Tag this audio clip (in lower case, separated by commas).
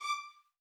musical instrument, music, bowed string instrument